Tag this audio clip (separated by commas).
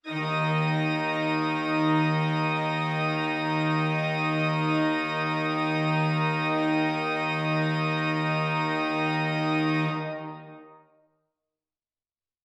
Organ, Keyboard (musical), Music, Musical instrument